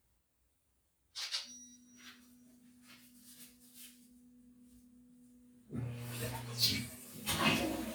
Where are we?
in a restroom